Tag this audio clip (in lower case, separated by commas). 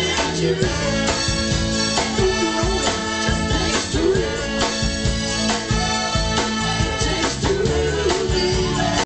roll, music